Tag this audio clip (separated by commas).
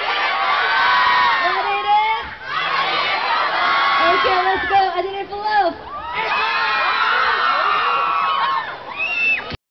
Crowd, Speech